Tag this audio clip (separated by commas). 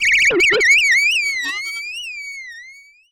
Animal